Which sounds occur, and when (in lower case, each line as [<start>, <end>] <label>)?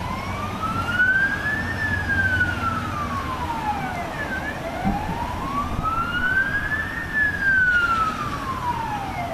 [0.00, 9.33] ambulance (siren)
[0.00, 9.33] mechanisms
[4.80, 4.91] generic impact sounds
[5.02, 5.13] generic impact sounds